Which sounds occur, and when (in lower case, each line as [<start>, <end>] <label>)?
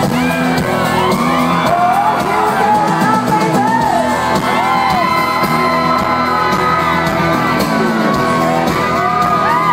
[0.00, 9.72] crowd
[0.00, 9.72] music
[0.16, 2.33] screaming
[1.64, 4.07] female speech
[4.36, 7.12] screaming
[9.36, 9.72] whoop